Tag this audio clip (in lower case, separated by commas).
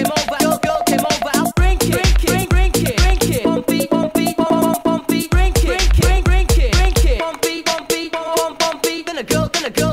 music, dance music